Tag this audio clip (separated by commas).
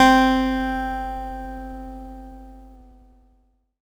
Plucked string instrument, Guitar, Acoustic guitar, Musical instrument, Music